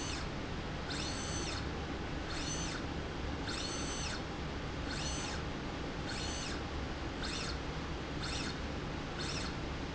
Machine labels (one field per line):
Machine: slide rail